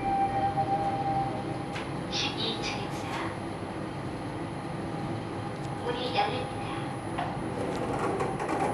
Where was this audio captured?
in an elevator